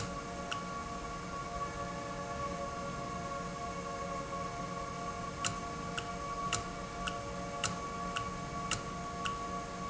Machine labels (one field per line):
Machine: valve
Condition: normal